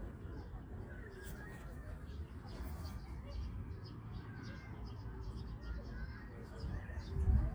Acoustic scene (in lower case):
park